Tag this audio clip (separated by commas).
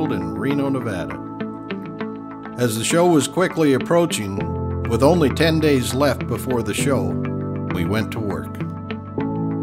Music, Speech